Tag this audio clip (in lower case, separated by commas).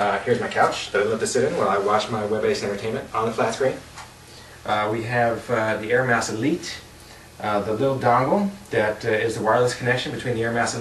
speech